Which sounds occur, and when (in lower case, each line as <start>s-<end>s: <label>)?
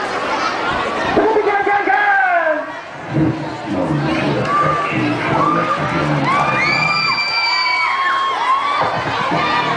0.0s-9.7s: speech babble
3.9s-6.9s: male speech
4.4s-9.7s: cheering
6.2s-8.9s: shout
8.7s-9.7s: music